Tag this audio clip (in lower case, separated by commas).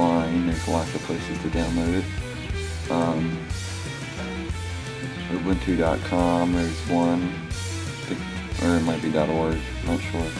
speech, music